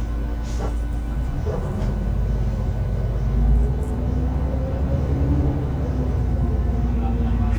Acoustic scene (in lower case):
bus